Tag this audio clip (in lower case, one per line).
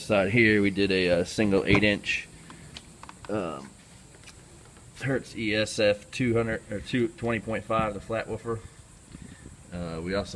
speech